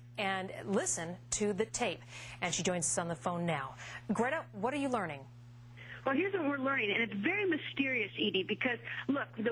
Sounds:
speech

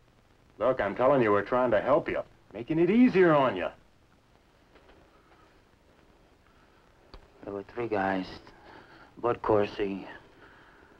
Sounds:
speech

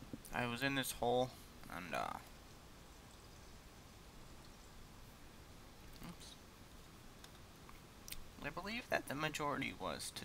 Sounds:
speech

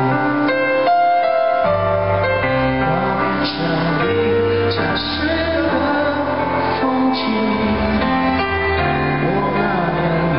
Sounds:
male singing
music

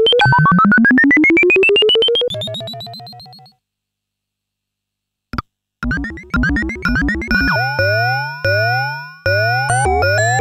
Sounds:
synthesizer
keyboard (musical)
playing synthesizer

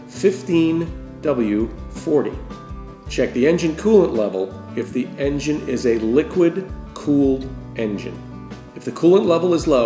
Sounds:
speech
music

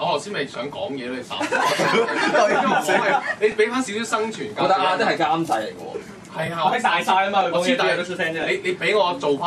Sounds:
speech

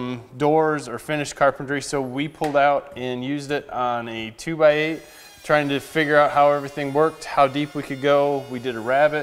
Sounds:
planing timber

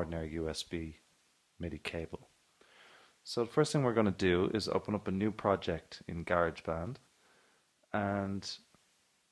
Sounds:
speech

